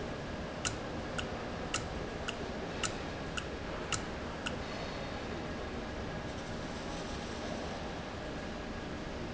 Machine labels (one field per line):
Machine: valve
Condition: normal